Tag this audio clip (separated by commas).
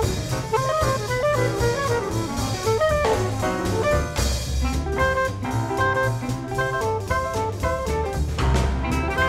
Music